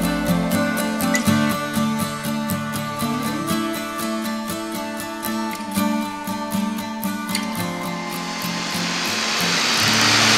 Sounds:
Vehicle, Medium engine (mid frequency), Music

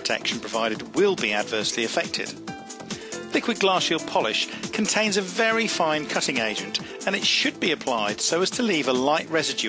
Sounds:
Music, Speech

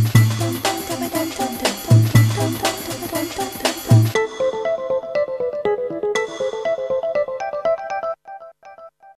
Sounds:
Music

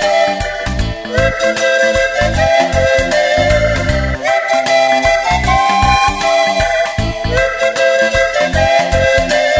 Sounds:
Music

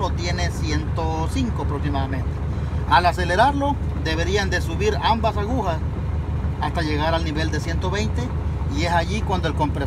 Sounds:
Speech, Vehicle

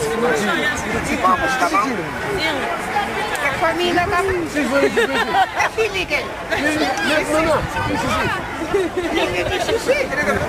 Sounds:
Speech

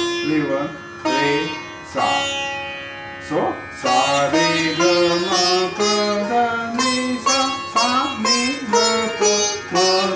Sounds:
playing sitar

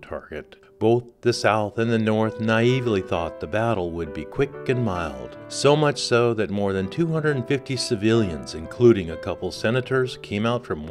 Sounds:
Music, Speech

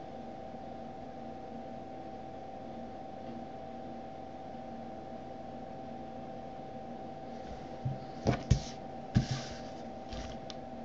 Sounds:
outside, urban or man-made

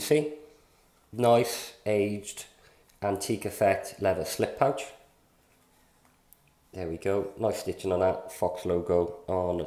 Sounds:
Speech

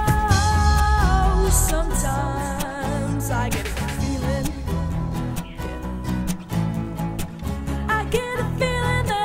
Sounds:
Music

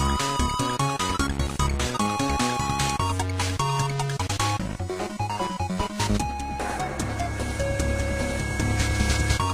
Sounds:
Video game music, Music

